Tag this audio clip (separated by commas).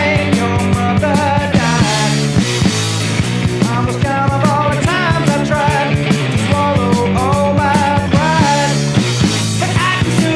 Music